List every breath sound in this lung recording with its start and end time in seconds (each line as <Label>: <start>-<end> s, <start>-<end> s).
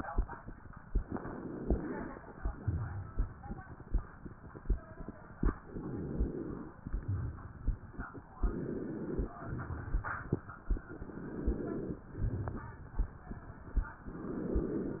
Inhalation: 0.99-2.12 s, 5.60-6.73 s, 8.40-9.37 s, 10.88-12.04 s, 14.06-15.00 s
Exhalation: 2.22-3.35 s, 6.77-7.78 s, 9.38-10.39 s, 12.04-13.05 s
Crackles: 2.22-3.35 s, 6.77-7.78 s, 9.38-10.39 s, 12.04-13.05 s